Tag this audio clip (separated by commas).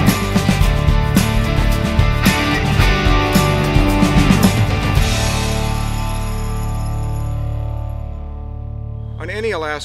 Music, Speech